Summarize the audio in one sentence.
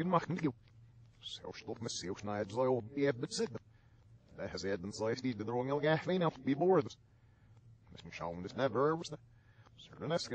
Human male speech plays backwards